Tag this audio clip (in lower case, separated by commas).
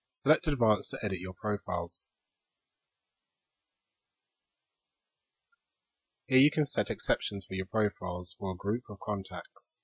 speech